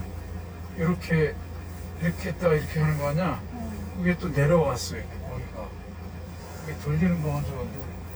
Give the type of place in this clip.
car